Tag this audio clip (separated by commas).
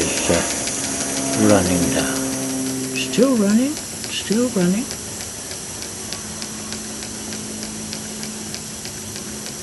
Speech, Engine